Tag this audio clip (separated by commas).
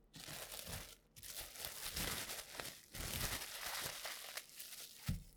Crumpling